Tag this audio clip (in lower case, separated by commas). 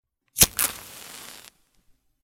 fire